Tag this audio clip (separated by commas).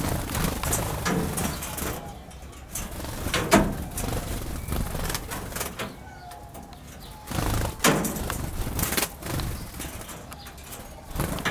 Wild animals, Animal, Bird